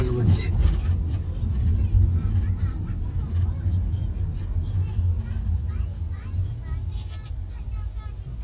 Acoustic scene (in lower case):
car